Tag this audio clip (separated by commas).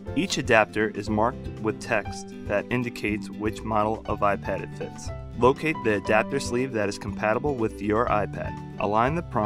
Music, Speech, Narration